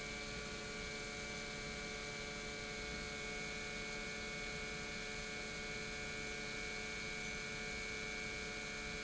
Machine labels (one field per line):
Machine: pump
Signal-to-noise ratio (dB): 6 dB